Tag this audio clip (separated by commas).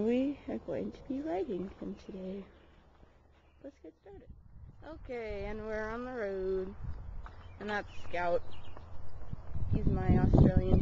Speech